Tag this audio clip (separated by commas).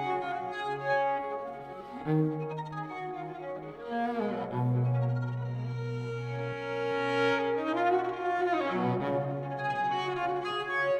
Violin, Music, fiddle, Musical instrument